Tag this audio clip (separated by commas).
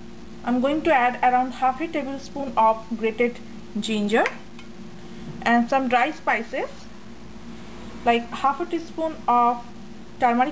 Speech